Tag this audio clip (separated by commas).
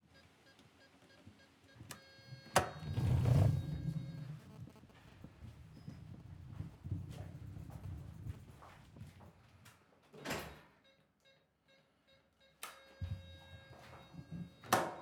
Sliding door, Door, Domestic sounds